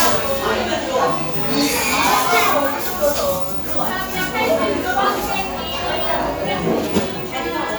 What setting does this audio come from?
cafe